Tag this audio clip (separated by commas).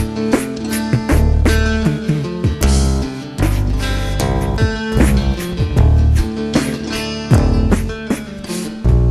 Music, Musical instrument, Plucked string instrument, Strum, Guitar